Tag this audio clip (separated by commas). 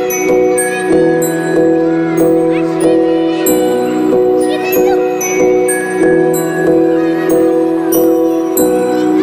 Music, Speech, Ping